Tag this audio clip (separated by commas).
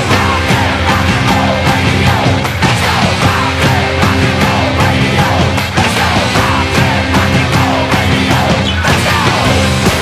Music